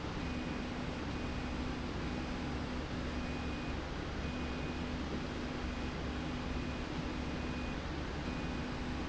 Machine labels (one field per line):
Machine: slide rail